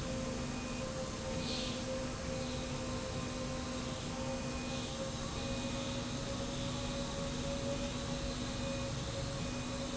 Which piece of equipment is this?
slide rail